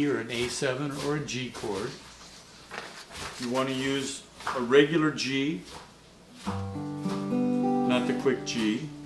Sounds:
music
speech
musical instrument
guitar

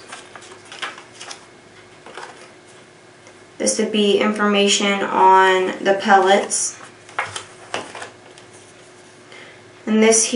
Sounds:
speech

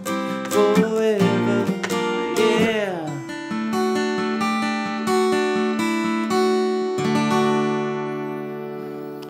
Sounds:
playing acoustic guitar

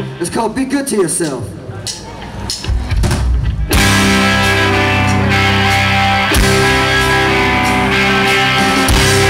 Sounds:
music
speech

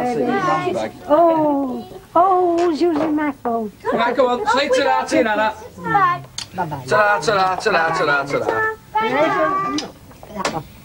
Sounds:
child speech
speech

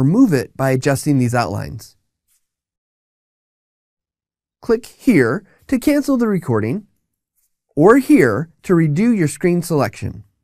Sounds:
monologue

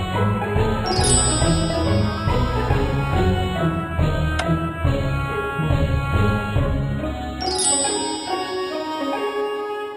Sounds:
music

